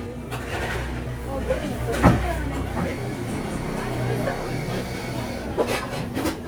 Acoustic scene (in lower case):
cafe